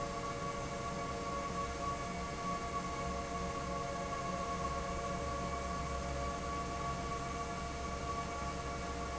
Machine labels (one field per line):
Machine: fan